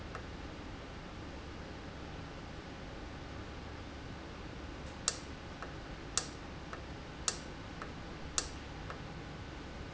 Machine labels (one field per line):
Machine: valve